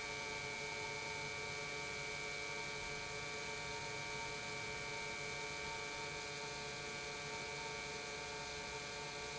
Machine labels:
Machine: pump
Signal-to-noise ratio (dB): 6 dB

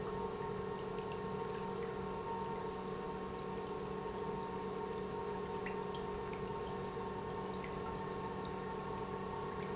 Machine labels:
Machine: pump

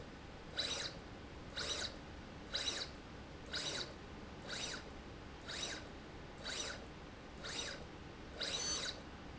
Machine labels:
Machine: slide rail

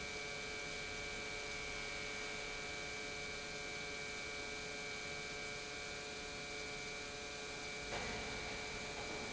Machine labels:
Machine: pump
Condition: normal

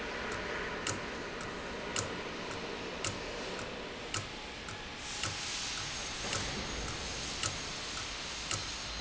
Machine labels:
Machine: valve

